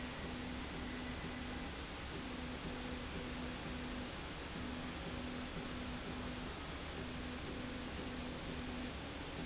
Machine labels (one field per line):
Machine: slide rail